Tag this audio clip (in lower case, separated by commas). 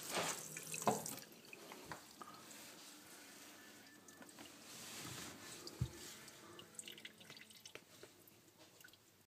water